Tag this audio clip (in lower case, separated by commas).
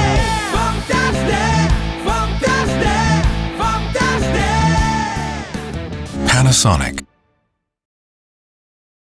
speech, music